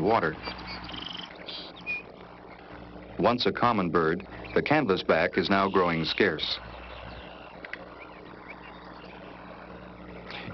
A man is narrating over birds chirping